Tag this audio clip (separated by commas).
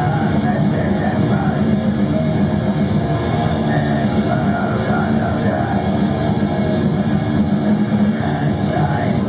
Music